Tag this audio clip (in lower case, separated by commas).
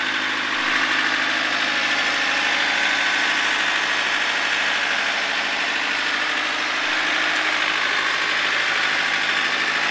vehicle